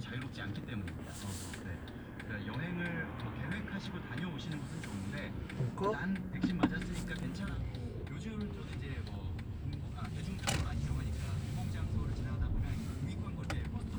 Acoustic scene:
car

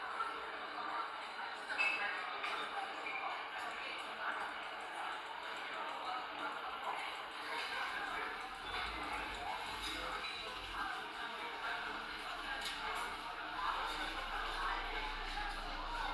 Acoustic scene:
crowded indoor space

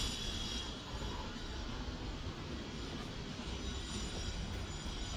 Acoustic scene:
residential area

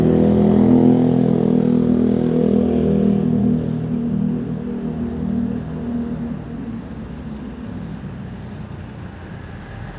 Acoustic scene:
residential area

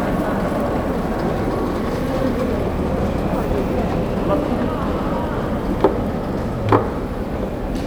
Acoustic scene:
subway station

